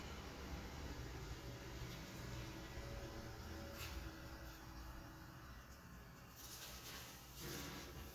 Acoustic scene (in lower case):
elevator